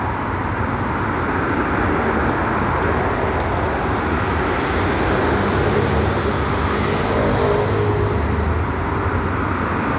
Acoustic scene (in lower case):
street